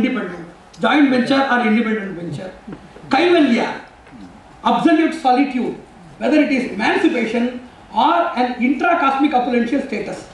An adult male is speaking